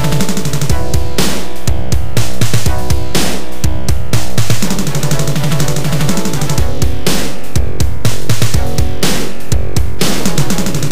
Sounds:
theme music, music

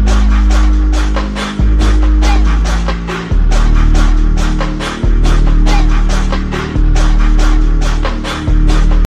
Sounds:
music

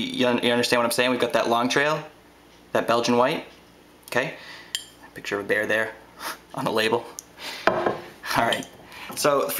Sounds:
speech

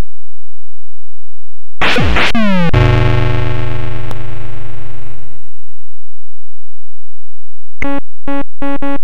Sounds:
music

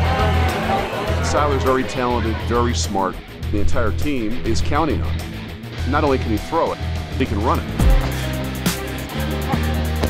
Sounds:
speech, music

